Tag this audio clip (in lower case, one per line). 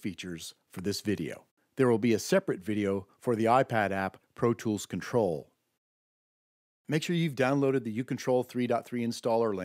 speech